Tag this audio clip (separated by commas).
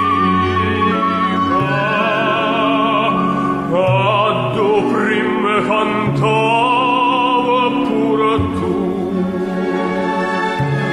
Opera, Music